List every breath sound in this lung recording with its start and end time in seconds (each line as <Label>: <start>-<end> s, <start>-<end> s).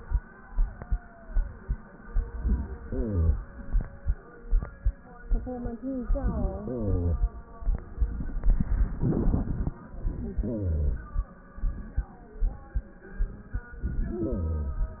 Inhalation: 2.35-3.53 s, 10.03-11.30 s, 13.71-15.00 s